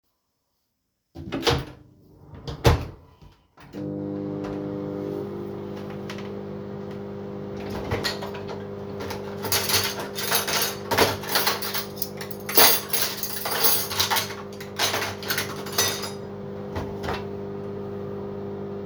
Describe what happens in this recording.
The phone was placed on the kitchen counter. I started the microwave, opened a drawer, and handled dishes and cutlery. Several sounds occur close together.